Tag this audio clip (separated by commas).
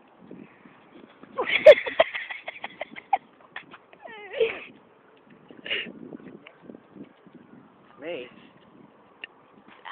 Speech